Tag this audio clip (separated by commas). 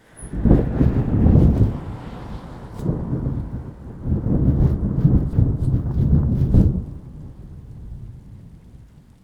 Wind, Thunder, Thunderstorm